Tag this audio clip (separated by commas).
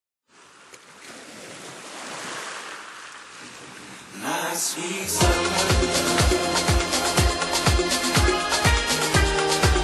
Music